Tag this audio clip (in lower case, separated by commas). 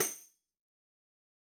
percussion, tambourine, music, musical instrument